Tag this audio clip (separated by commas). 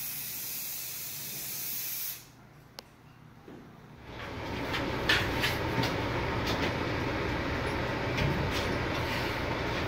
sliding door